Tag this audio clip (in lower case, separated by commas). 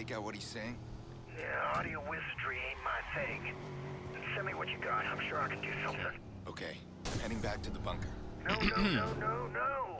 speech